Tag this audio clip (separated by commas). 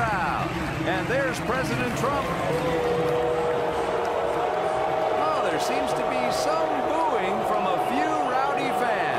people booing